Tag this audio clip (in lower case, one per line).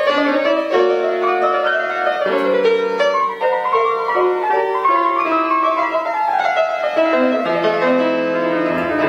music